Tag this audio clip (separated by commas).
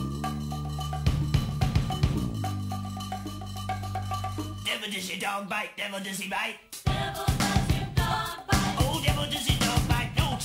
Music